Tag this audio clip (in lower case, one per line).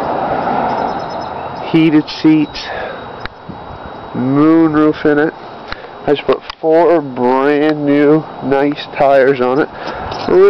speech